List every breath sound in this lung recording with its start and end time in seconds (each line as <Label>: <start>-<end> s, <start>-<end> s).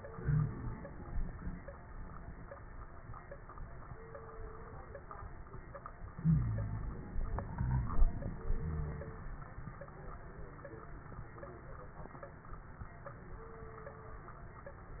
Inhalation: 0.00-1.67 s
Wheeze: 0.18-0.71 s, 6.21-6.96 s, 7.59-7.96 s, 8.60-9.15 s